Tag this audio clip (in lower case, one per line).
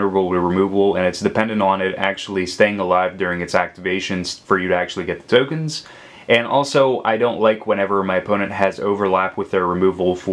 speech